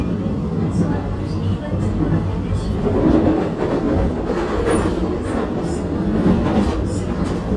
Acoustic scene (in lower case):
subway train